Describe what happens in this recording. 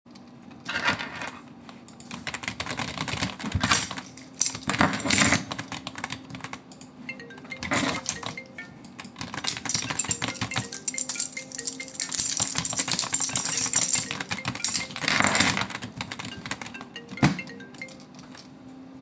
While typing on my keyboard, I simultaneously jingle my keys in my hand and my phone starts ringing.